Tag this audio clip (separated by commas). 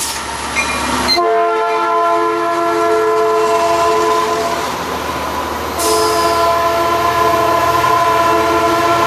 Train, Train whistle, Railroad car, Vehicle